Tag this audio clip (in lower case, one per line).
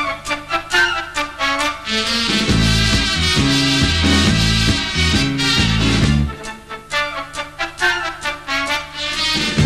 music